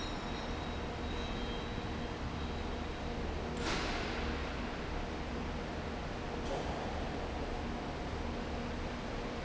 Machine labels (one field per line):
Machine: fan